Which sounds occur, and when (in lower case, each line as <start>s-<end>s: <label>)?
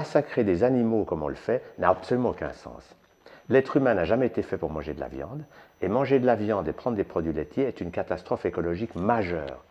0.0s-9.7s: background noise
0.0s-2.9s: man speaking
1.6s-1.9s: beep
2.3s-9.7s: beep
3.2s-3.4s: breathing
3.4s-5.4s: man speaking
5.5s-5.7s: breathing
5.7s-9.5s: man speaking